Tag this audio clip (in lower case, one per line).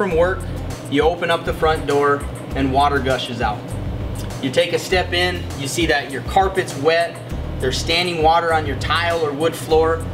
music
speech